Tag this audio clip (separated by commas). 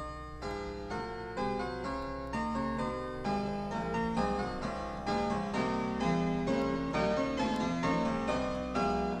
Piano, Keyboard (musical)